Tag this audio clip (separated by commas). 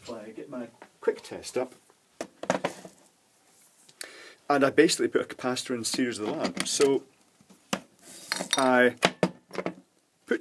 inside a small room, Speech